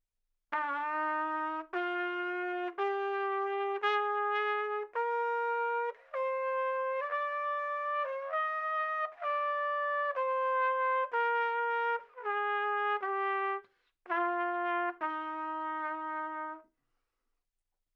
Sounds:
Brass instrument, Musical instrument, Trumpet, Music

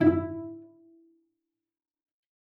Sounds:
Musical instrument, Music, Bowed string instrument

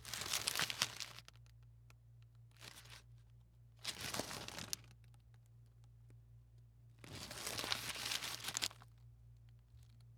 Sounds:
crinkling

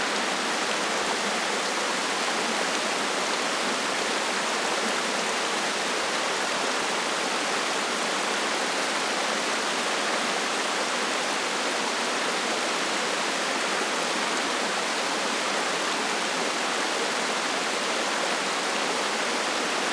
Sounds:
Water

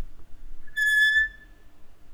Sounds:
Squeak, Screech

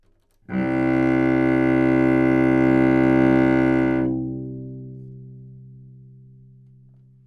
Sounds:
Music, Musical instrument, Bowed string instrument

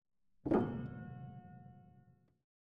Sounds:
Piano, Musical instrument, Keyboard (musical), Music

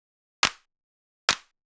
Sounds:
Hands, Clapping

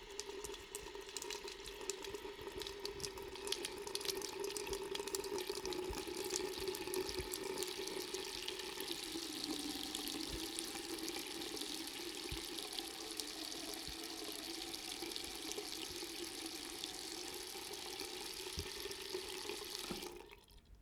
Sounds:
Sink (filling or washing), faucet, home sounds

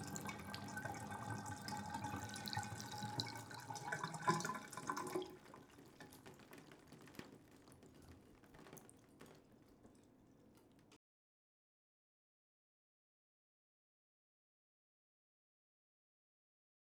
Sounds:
Liquid, Pour, home sounds, Trickle, Bathtub (filling or washing)

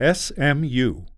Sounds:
Human voice, Speech, man speaking

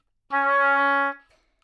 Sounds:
Musical instrument, Wind instrument, Music

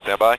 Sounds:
Human voice, Speech, Male speech

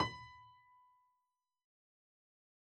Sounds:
Piano, Keyboard (musical), Musical instrument, Music

